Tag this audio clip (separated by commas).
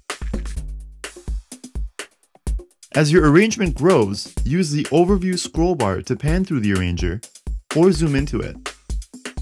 Speech, Music